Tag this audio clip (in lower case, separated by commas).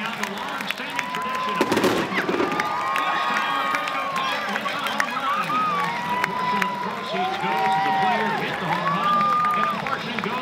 speech